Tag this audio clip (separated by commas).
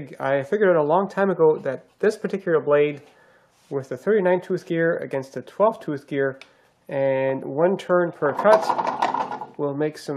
Wood, Speech